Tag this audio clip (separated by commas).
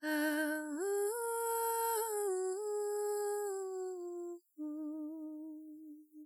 Female singing, Human voice, Singing